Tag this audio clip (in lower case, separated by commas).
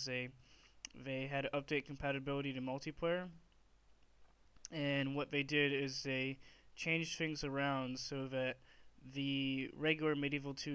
speech